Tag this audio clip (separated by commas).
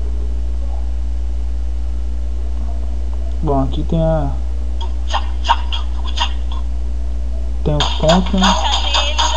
Speech, Music